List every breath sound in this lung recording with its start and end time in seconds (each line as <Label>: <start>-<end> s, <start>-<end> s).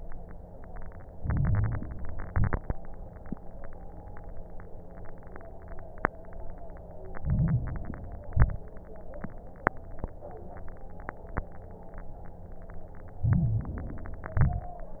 Inhalation: 1.12-2.22 s, 7.18-8.28 s, 13.21-14.31 s
Exhalation: 2.28-2.71 s, 8.28-8.72 s, 14.35-14.78 s
Crackles: 1.12-2.22 s, 2.28-2.71 s, 7.18-8.28 s, 8.28-8.72 s, 13.21-14.31 s, 14.35-14.78 s